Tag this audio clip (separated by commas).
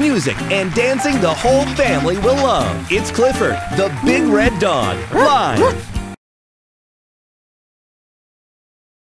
Speech, Music